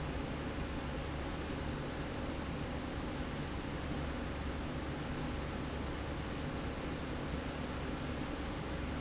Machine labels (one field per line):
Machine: slide rail